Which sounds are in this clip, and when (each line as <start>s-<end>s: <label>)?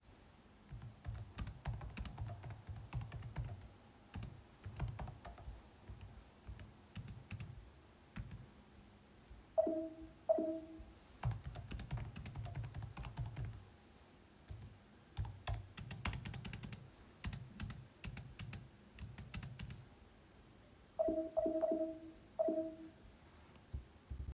0.8s-8.5s: keyboard typing
9.5s-10.7s: phone ringing
11.2s-13.6s: keyboard typing
14.4s-19.9s: keyboard typing
20.9s-23.0s: phone ringing